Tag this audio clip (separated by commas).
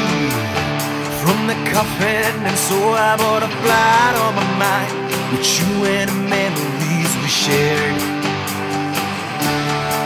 Music